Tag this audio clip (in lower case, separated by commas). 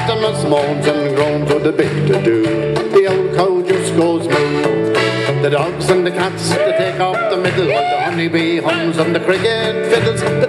music